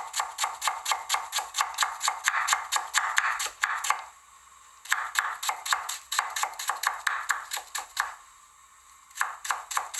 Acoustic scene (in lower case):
kitchen